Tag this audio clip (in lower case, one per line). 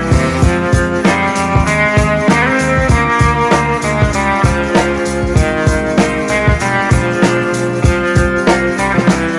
music